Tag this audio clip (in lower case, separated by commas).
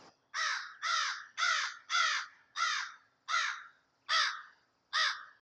wild animals, animal, crow, bird